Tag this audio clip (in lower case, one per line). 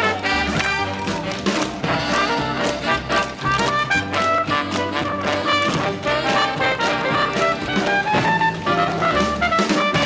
tap
music